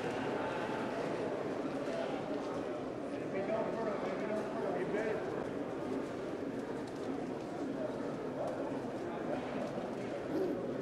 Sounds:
speech

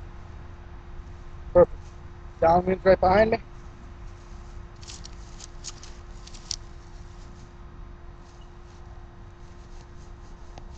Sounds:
speech

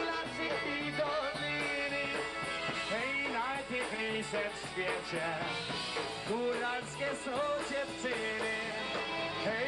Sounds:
music
fiddle
musical instrument

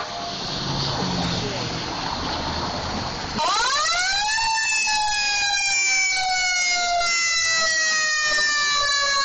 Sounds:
car
fire engine

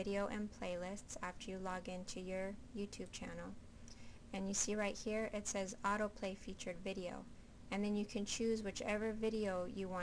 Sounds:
speech

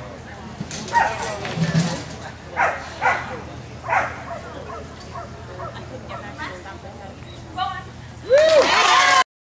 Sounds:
speech

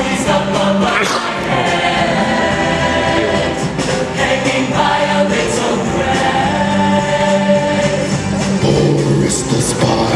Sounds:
music
independent music

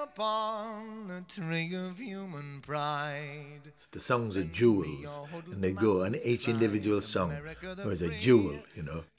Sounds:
speech

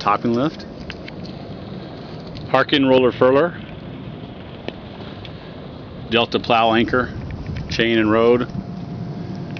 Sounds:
speech

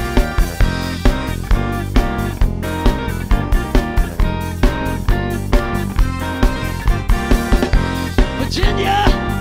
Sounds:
pop music
middle eastern music
music
speech

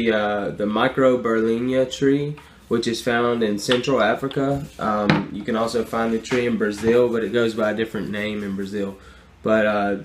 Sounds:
speech

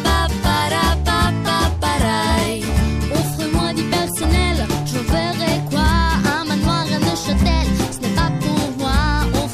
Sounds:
rhythm and blues
music

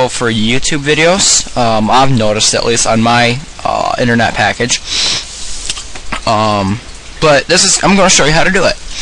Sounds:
speech

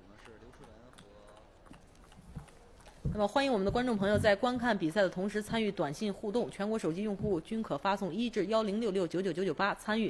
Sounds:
speech

